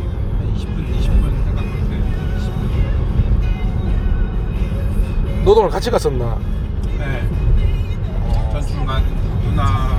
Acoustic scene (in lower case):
car